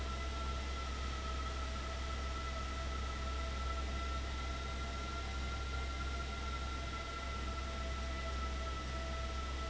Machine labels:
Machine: fan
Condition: abnormal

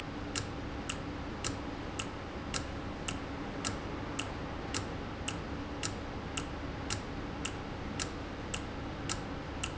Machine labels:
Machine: valve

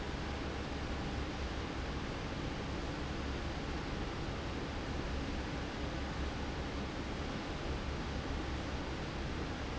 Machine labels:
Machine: fan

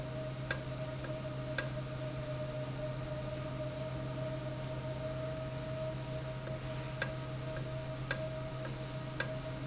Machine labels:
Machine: valve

